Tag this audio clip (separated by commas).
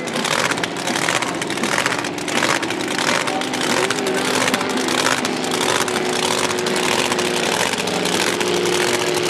Speech, Music